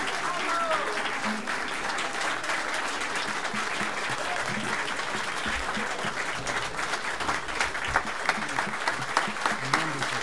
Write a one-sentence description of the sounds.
A crowd cheering with a faint tapping of drums